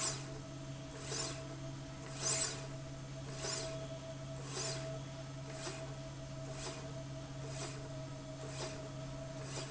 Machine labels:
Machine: slide rail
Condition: normal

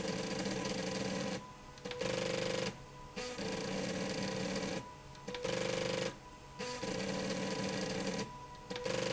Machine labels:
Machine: slide rail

